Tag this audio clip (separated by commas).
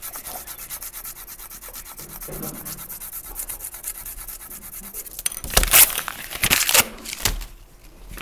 Tearing